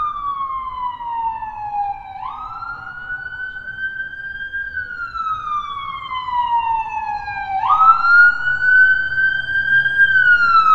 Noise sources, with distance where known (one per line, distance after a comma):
siren, near